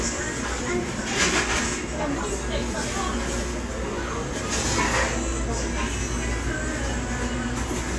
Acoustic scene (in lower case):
restaurant